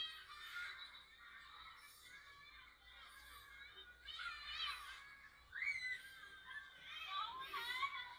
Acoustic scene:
residential area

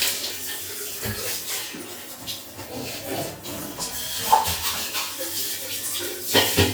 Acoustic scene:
restroom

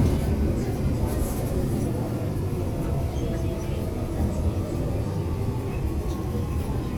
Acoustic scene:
subway station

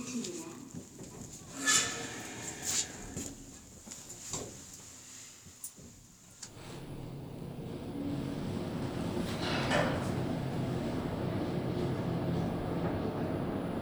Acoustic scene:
elevator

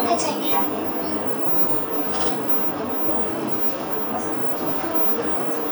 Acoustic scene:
bus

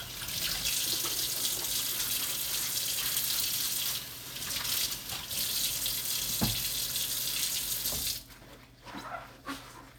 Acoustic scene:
kitchen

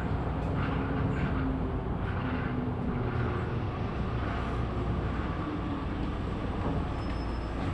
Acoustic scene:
bus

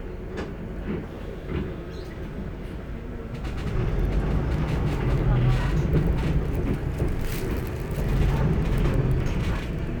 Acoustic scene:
bus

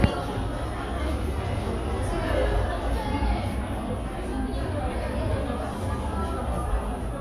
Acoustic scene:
cafe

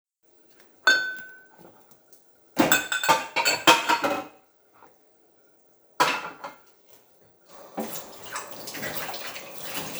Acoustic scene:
kitchen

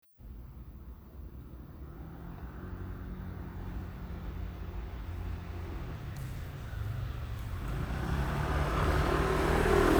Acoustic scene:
residential area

